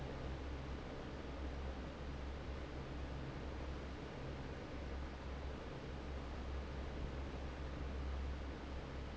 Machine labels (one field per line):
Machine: fan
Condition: normal